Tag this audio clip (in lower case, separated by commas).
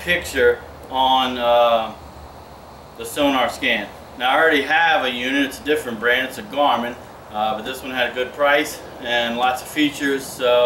speech